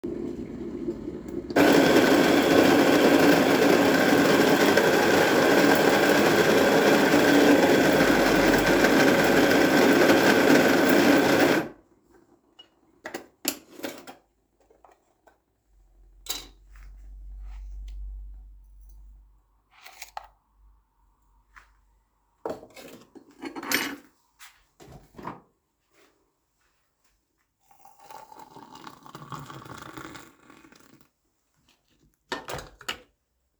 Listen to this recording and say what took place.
I ground coffee beans and prepared a French press. I added coffee with a spoon into the French press. Then I poured hot water over the coffee to brew it.